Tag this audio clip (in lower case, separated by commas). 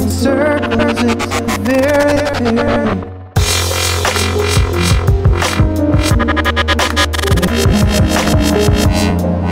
dubstep, electronic music, music